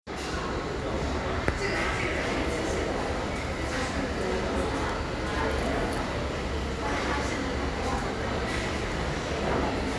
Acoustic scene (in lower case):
restaurant